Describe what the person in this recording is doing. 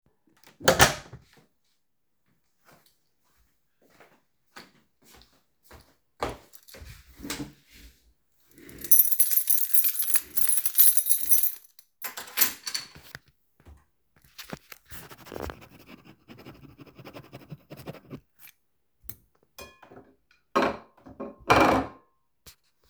I closed the door and walked to the desk. I moved the desk chair and shook a keychain in my hand. After that I wrote something in a notebook with a pen. Finally I placed a fork on a plate